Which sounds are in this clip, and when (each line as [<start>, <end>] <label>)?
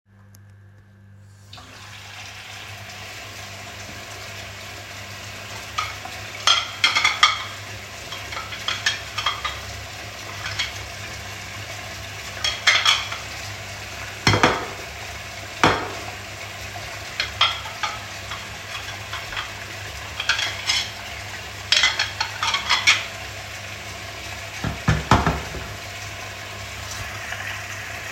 [1.46, 28.12] running water